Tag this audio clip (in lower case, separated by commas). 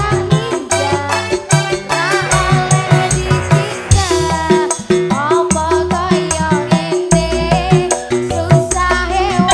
music